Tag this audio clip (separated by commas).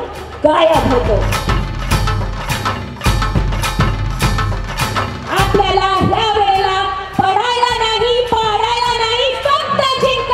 Speech, Female speech, monologue, Music